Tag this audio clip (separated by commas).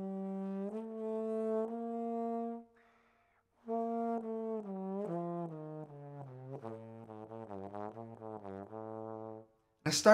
playing trombone